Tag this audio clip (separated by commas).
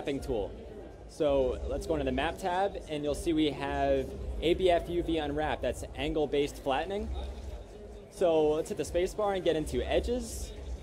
Speech